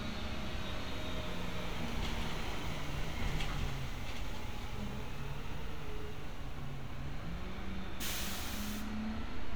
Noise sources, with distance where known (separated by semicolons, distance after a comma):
large-sounding engine, near